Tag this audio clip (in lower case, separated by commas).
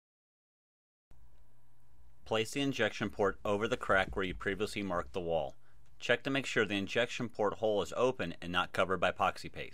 speech